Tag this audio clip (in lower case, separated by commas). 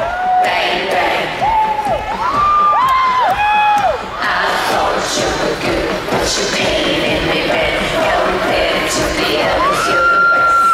music